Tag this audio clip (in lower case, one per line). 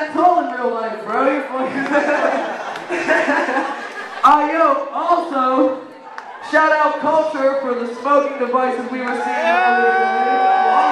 speech